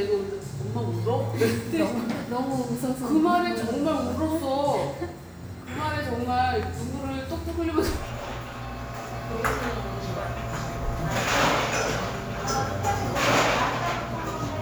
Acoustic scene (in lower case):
cafe